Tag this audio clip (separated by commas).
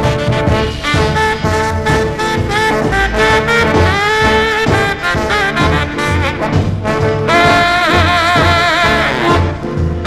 Swing music, Music